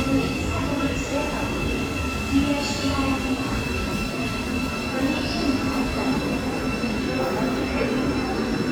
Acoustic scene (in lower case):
subway station